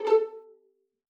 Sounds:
Music, Musical instrument, Bowed string instrument

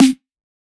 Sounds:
Music, Musical instrument, Snare drum, Drum, Percussion

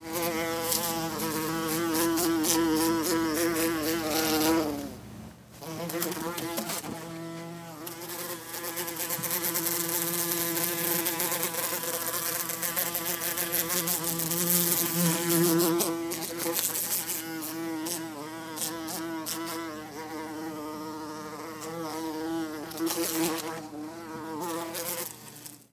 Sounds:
Wild animals, Animal, Buzz, Insect

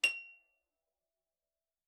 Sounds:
Harp, Music, Musical instrument

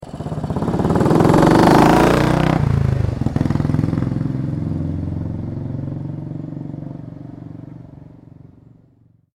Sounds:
Motor vehicle (road), Vehicle, Motorcycle

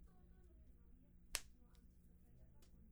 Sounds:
Hands

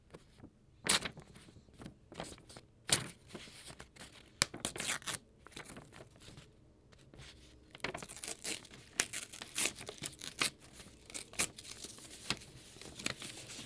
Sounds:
Tearing

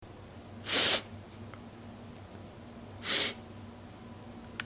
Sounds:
Respiratory sounds

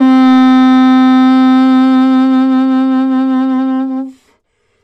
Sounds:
Wind instrument, Musical instrument, Music

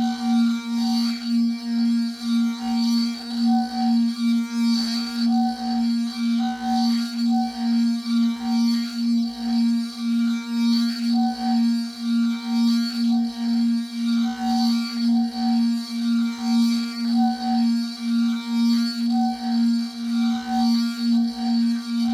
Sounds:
Glass

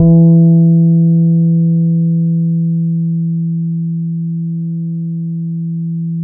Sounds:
Plucked string instrument, Music, Musical instrument, Guitar, Bass guitar

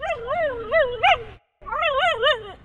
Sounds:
Dog, Domestic animals, Animal

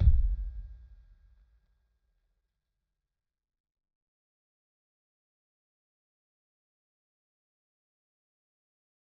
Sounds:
Percussion, Music, Bass drum, Drum, Musical instrument

